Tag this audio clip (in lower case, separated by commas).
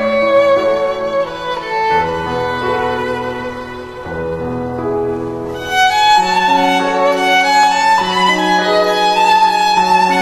fiddle, bowed string instrument, music